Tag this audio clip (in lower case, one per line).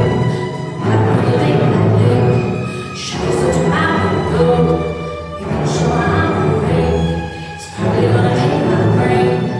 music
orchestra